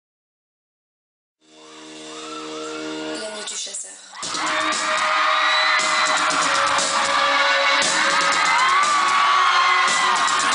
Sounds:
Speech, Music

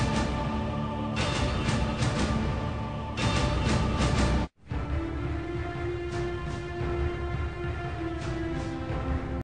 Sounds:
Music

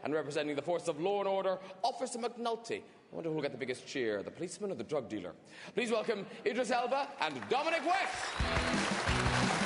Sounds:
Music, Speech

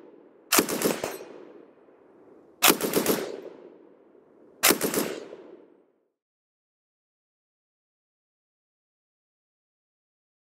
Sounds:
machine gun shooting

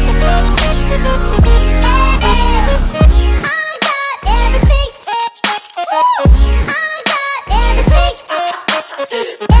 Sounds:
Music

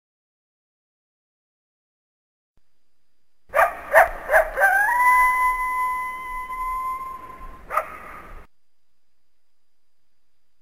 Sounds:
coyote howling

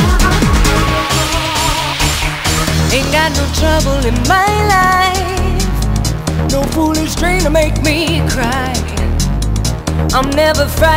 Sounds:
Music, Exciting music

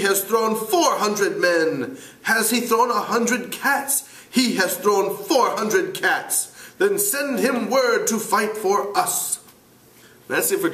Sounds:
inside a small room, Speech

